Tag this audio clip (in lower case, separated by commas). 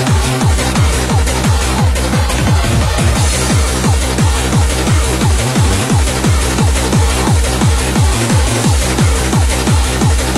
music